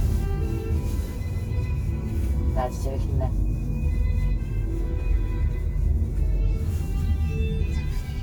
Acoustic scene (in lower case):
car